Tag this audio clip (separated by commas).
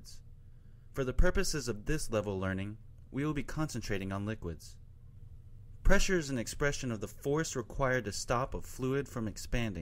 Speech